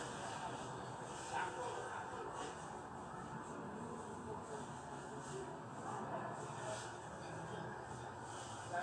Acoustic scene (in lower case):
residential area